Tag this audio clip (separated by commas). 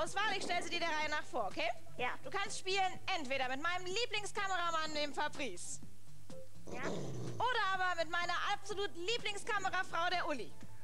Music, Speech